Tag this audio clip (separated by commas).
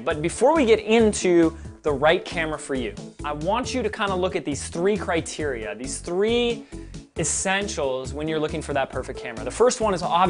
Music, Speech